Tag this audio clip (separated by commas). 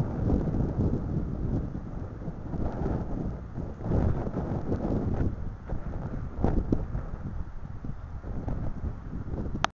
Wind noise (microphone)